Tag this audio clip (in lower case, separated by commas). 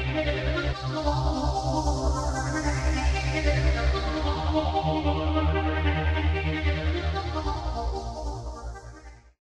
music